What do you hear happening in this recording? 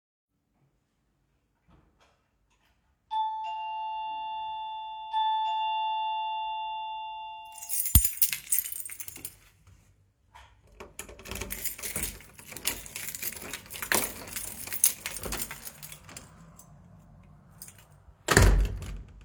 I walked into the hallway, then the doorbell rang. I took my keys and opened the door. Light street noise could be heard from outside. Finally, I closed the door.